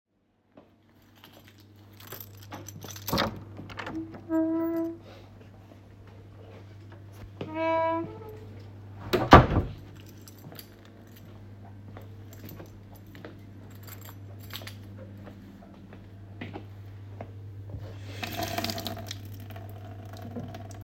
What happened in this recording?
I entered a room with my keychains in my hand and turned on the tap water